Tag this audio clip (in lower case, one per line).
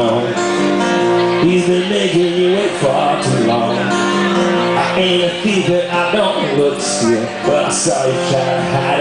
speech
music